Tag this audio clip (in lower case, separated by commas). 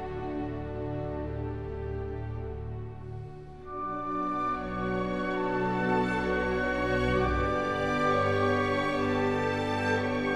playing oboe